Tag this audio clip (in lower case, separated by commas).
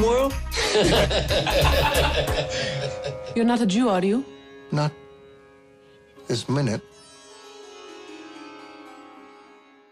speech, music, harpsichord